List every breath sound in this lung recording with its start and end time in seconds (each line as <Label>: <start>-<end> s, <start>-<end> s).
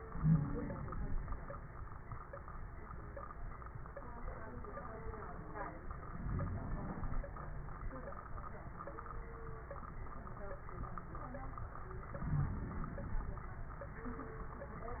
Inhalation: 0.00-0.83 s, 6.12-7.25 s, 12.15-13.43 s
Wheeze: 0.17-0.51 s
Crackles: 6.12-7.25 s, 12.15-13.43 s